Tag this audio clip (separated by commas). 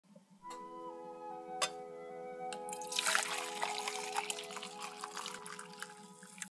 Music